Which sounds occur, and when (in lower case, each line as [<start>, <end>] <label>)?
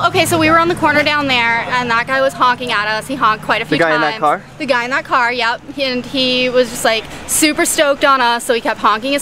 [0.00, 4.16] female speech
[0.00, 9.21] conversation
[0.00, 9.21] motor vehicle (road)
[3.66, 4.37] man speaking
[4.55, 5.57] female speech
[5.75, 7.00] female speech
[7.24, 9.21] female speech